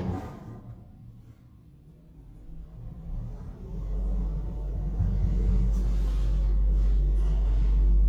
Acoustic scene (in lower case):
elevator